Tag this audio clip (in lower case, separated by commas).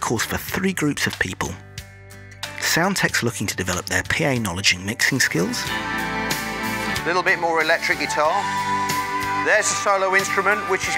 speech, music